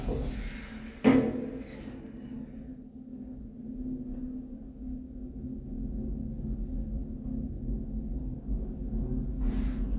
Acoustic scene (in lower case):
elevator